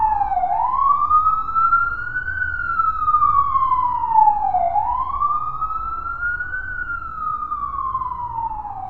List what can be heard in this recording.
siren